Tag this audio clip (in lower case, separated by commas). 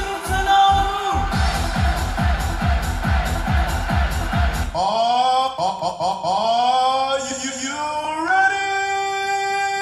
music, speech